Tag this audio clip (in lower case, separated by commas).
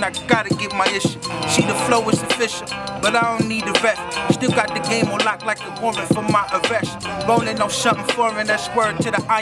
music